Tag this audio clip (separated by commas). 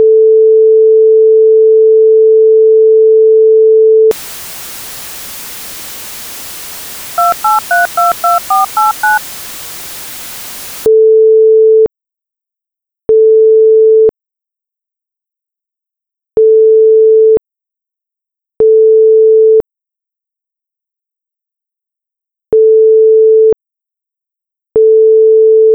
Alarm, Telephone